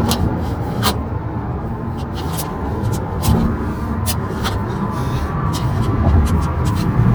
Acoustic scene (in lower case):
car